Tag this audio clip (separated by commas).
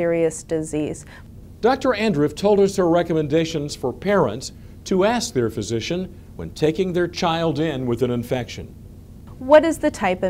inside a small room, Speech